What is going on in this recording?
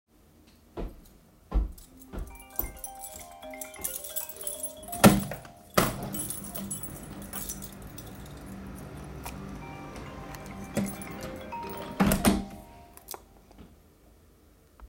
My phone started ringing while my keys were clanking. While both sounds were ongoing I opened the window and closed it again. The phone continued ringing throughout the entire scene.